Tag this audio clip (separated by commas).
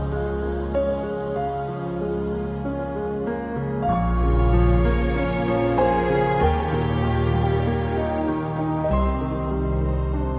New-age music, Music